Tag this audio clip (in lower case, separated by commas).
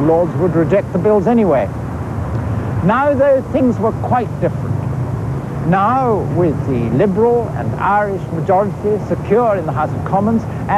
outside, urban or man-made, speech